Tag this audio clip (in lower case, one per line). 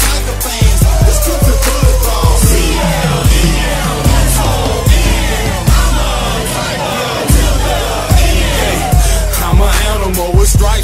music